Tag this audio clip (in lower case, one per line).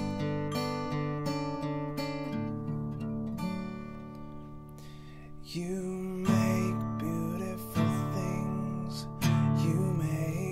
musical instrument
singing
acoustic guitar
guitar
music
plucked string instrument